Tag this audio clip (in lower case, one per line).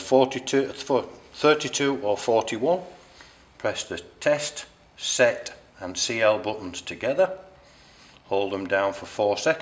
speech